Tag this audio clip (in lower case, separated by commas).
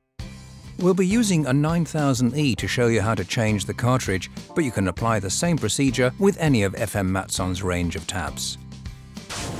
speech, music